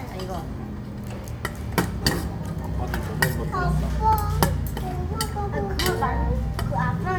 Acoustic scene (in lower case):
restaurant